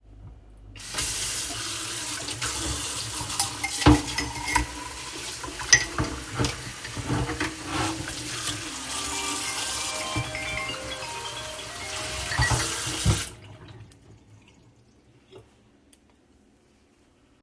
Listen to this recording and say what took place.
I opened the tap, water running, took the cup and fork, washed them, during this process my phone rang and after closed the tap (overlap)